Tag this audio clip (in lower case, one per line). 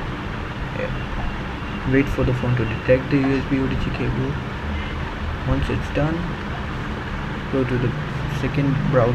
speech
inside a small room